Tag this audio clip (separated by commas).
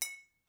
Glass